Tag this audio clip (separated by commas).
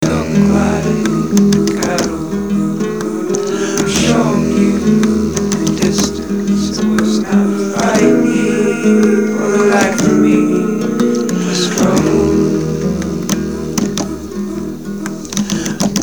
Guitar, Music, Acoustic guitar, Plucked string instrument, Musical instrument